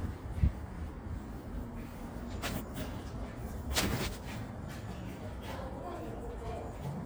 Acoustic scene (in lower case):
residential area